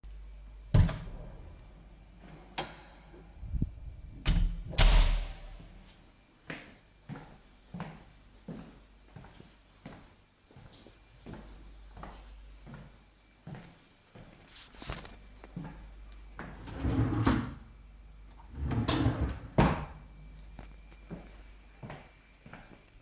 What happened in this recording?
I opened the door, walked in, then closed the door. I went to the drawer, opened it, closed it, and went out.